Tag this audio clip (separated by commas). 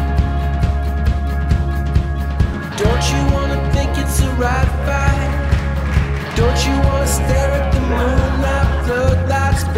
Music